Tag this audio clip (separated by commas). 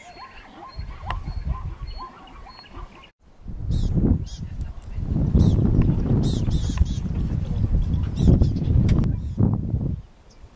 Bird